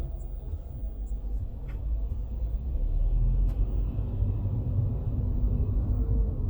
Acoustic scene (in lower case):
car